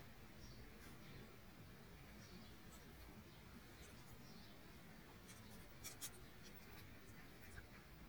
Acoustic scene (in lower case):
park